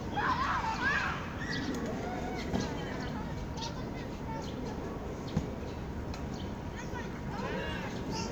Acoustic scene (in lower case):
park